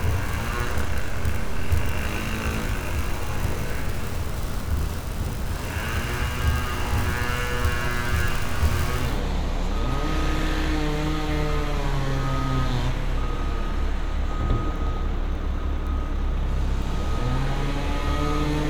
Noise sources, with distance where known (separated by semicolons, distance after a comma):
chainsaw, near